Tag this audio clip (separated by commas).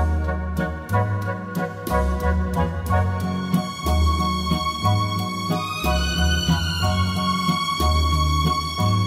Music, New-age music